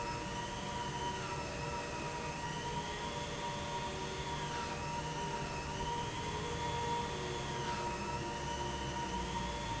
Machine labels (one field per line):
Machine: pump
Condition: abnormal